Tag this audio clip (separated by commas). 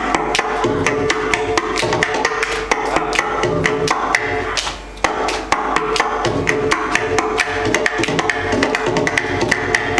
Wood block, Percussion, Music